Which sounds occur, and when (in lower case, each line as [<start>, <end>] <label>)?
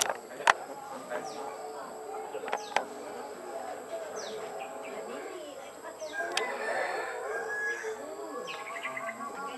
[0.00, 0.15] generic impact sounds
[0.00, 9.55] hubbub
[0.00, 9.55] mechanisms
[0.45, 0.58] generic impact sounds
[1.07, 1.22] generic impact sounds
[1.23, 1.46] bird song
[1.76, 1.92] generic impact sounds
[2.47, 2.85] generic impact sounds
[2.56, 2.79] bird song
[4.05, 5.03] bird song
[6.00, 6.30] bird song
[6.01, 8.16] cock-a-doodle-doo
[6.30, 6.42] generic impact sounds
[7.34, 7.45] generic impact sounds
[7.96, 9.55] bird song